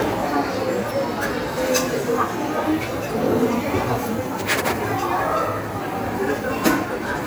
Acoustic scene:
cafe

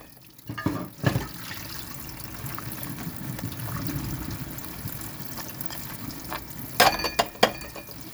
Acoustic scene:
kitchen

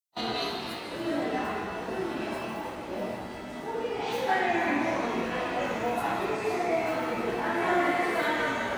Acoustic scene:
subway station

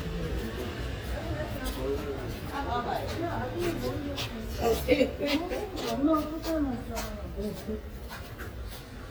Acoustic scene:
residential area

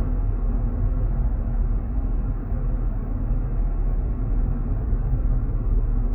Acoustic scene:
car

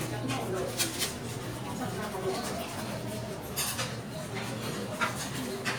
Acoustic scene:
restaurant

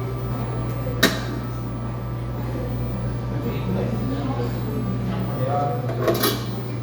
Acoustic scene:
cafe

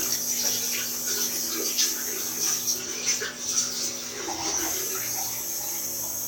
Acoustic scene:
restroom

